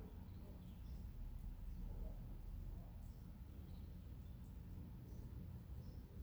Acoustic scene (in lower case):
residential area